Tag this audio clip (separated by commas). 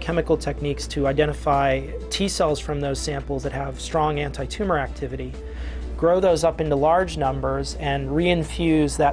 Music, Speech